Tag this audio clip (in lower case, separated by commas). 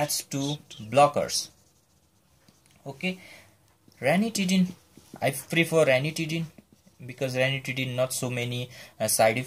writing, speech, inside a small room